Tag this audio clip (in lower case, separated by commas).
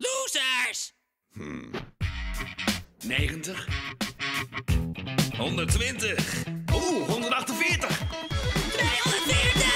music, speech